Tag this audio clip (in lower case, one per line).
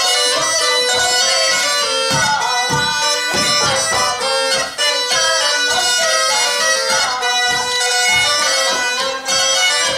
music